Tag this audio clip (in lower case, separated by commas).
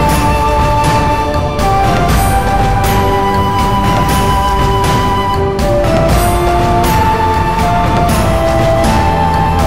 theme music, music, video game music, background music